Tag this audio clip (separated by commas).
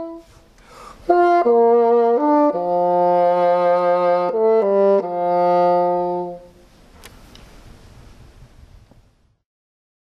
playing bassoon